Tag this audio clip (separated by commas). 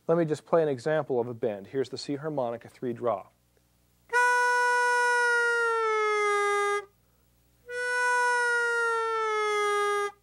Harmonica, Music, Musical instrument